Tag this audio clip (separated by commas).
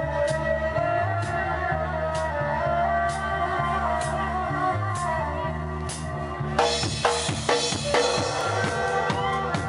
Dubstep, Music, Electronic music